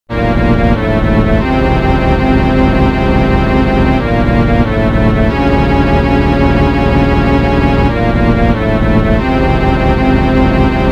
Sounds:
Video game music

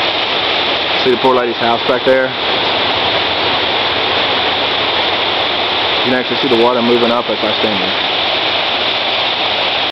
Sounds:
Speech

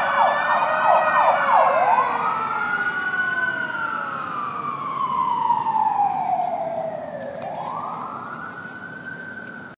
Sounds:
fire truck (siren), Emergency vehicle, Vehicle, Siren

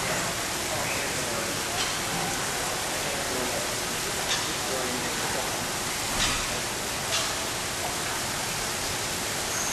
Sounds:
outside, rural or natural, Bird

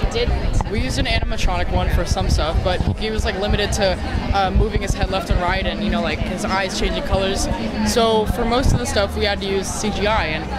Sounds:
Speech

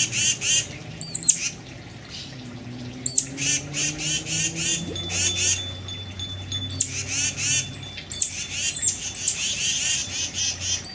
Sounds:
Water, tweet, Bird vocalization, Bird, bird chirping

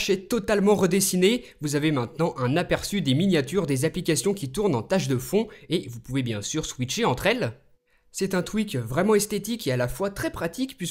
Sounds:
Speech

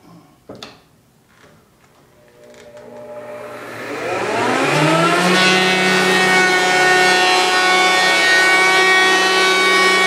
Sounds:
planing timber

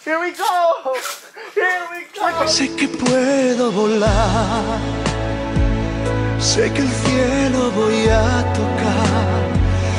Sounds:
Speech, Music

